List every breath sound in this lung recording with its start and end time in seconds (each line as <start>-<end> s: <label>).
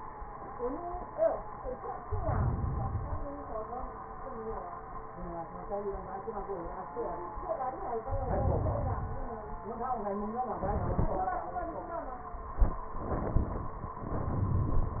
1.99-3.33 s: inhalation
8.04-9.38 s: inhalation